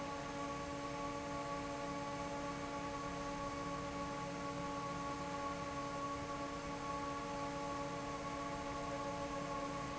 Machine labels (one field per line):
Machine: fan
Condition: normal